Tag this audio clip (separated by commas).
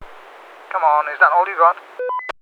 Male speech, Speech, Human voice